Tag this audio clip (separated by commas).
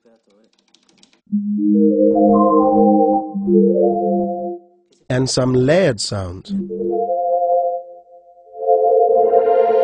Music, Speech, Piano, Musical instrument, Keyboard (musical)